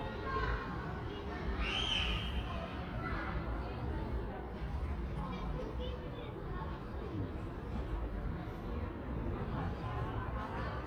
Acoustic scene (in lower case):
residential area